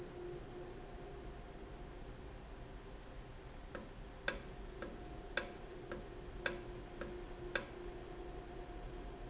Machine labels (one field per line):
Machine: valve